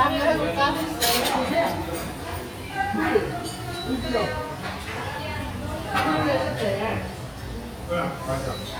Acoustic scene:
restaurant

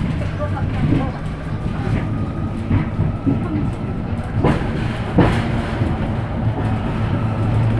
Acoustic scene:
bus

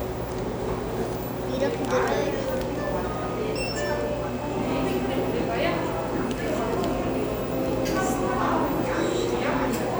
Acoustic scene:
cafe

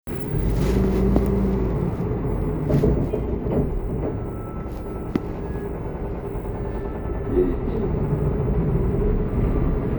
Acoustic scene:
bus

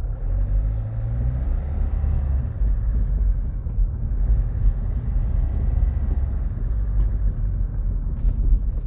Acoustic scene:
car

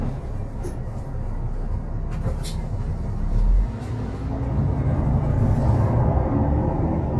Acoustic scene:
bus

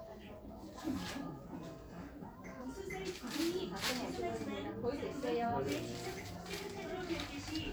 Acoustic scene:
crowded indoor space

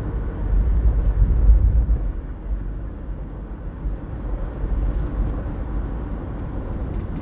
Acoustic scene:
car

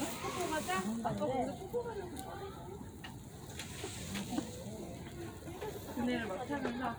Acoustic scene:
residential area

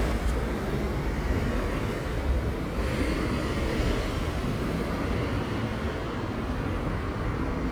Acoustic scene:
street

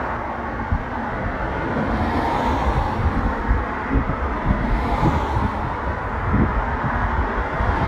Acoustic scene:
street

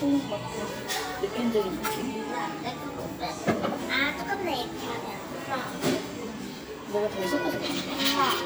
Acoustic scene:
cafe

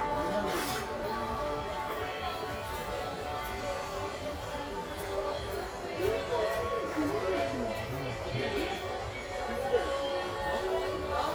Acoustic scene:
crowded indoor space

